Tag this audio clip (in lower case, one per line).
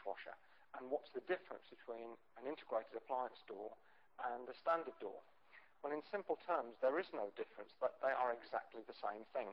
speech